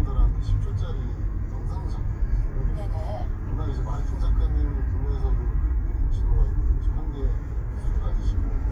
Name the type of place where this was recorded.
car